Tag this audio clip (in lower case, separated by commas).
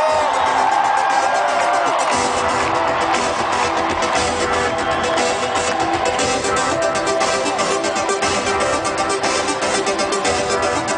music